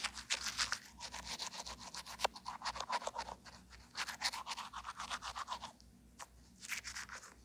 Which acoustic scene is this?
restroom